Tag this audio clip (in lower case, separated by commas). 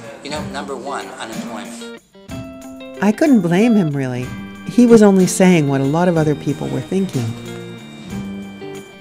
music, speech